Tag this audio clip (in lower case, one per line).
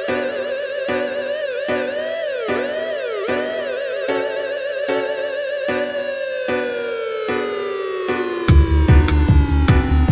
music